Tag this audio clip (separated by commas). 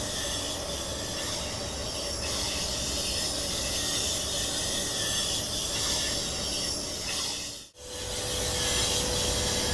Train, Vehicle, Railroad car, Rail transport